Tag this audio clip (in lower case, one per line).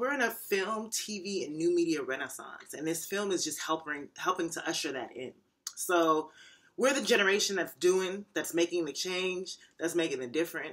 speech